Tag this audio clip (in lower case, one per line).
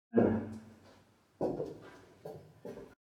footsteps